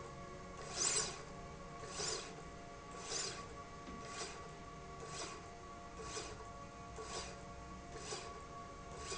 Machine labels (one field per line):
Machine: slide rail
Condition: normal